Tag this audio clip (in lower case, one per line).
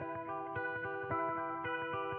music
musical instrument
guitar
electric guitar
plucked string instrument